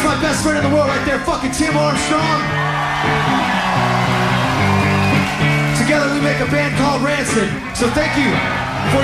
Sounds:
Speech, Music

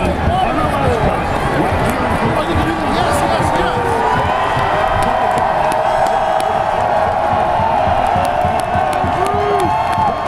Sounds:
Speech

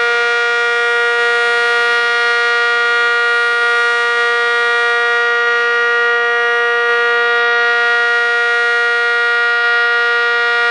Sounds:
Civil defense siren, Siren

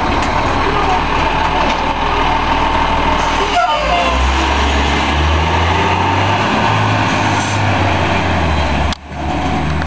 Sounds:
Air brake, Vehicle

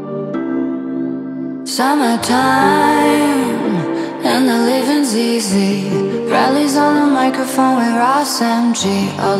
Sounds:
female singing

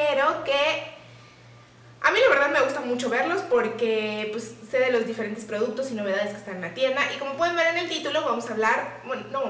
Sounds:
Speech

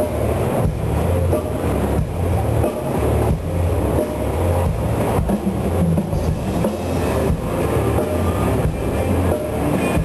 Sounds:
Drum kit, Music, Hip hop music

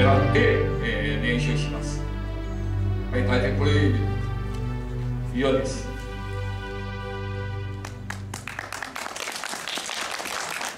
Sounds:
Speech, Music

